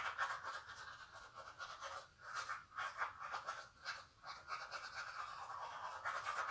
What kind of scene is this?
restroom